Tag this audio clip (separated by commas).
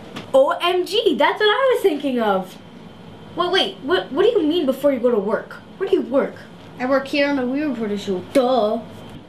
Speech